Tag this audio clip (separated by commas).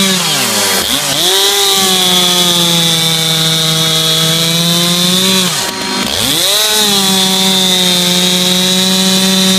Chainsaw, chainsawing trees